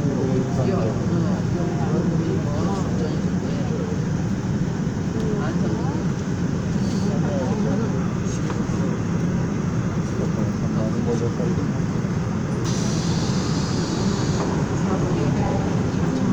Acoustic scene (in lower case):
subway train